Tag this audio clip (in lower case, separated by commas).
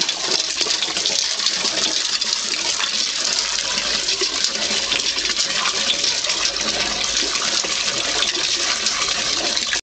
water